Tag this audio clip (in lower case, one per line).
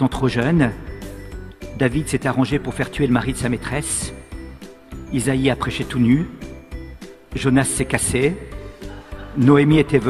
music
speech